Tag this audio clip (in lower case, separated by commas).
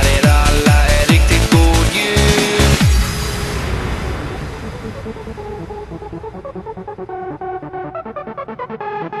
electronic music, techno, music